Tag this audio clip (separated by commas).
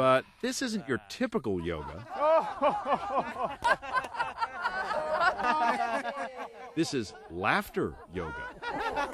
Speech